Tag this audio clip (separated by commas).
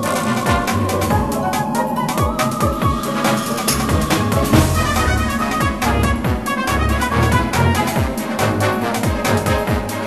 Music